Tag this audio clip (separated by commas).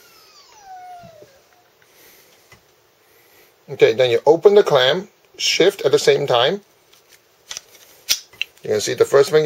Speech